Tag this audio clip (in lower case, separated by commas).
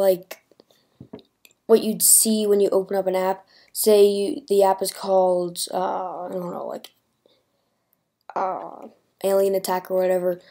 speech